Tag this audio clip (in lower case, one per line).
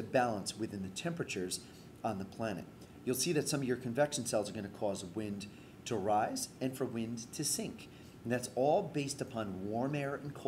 speech